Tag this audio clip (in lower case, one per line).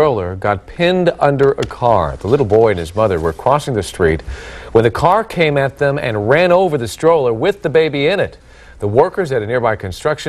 speech